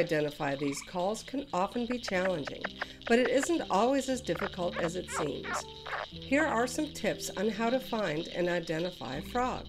Woman speaking and frog croaking